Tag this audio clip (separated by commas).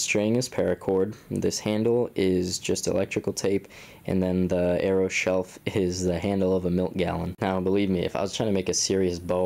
Speech